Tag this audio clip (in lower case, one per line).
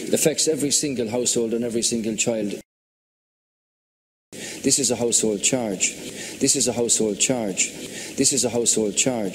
speech